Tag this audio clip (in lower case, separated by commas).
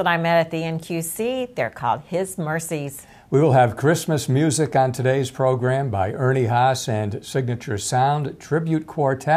speech